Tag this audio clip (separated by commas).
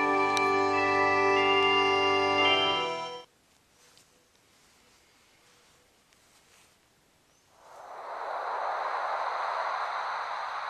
Music